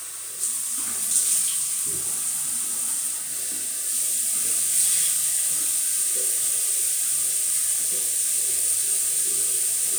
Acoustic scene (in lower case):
restroom